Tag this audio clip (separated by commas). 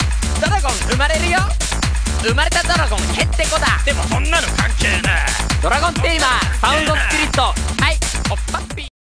Music